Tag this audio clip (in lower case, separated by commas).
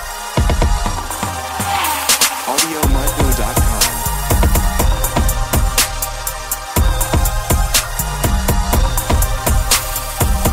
music, electronic music